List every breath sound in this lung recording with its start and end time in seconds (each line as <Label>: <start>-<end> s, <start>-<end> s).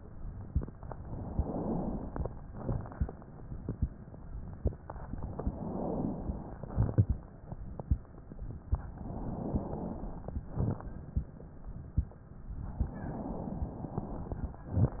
Inhalation: 1.03-2.25 s, 5.33-6.55 s, 9.07-10.29 s, 12.65-15.00 s
Exhalation: 2.40-3.25 s, 6.56-7.42 s, 10.38-11.27 s
Crackles: 2.40-3.25 s, 6.56-7.42 s, 10.38-11.27 s